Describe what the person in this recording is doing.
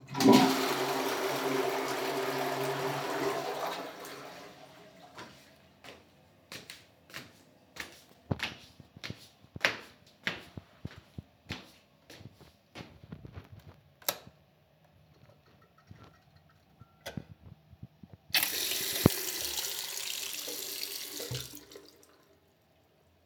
I entered the bathroom and turned on the light. I walked across the room and flushed the toilet. Afterward I turned on the sink and water ran briefly.